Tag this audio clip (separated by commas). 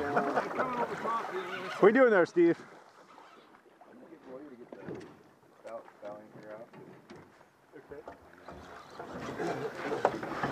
Speech, Goose